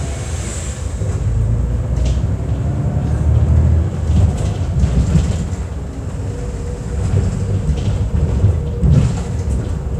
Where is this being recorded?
on a bus